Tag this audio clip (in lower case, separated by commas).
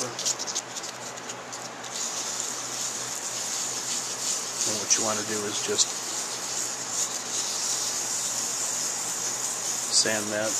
speech